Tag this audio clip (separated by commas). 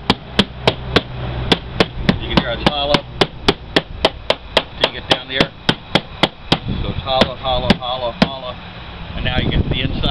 Speech